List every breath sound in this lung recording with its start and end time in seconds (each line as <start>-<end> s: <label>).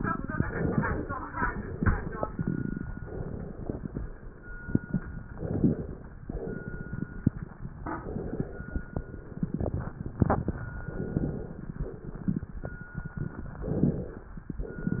0.44-1.27 s: inhalation
1.42-2.26 s: exhalation
2.97-3.79 s: inhalation
5.35-6.19 s: inhalation
6.30-7.14 s: exhalation
7.89-8.73 s: inhalation
9.03-10.11 s: exhalation
10.91-11.73 s: inhalation
11.82-12.64 s: exhalation
13.57-14.38 s: inhalation